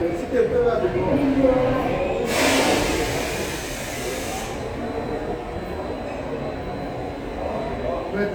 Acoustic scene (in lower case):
subway station